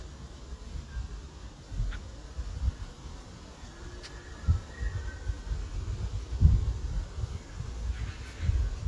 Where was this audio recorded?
in a park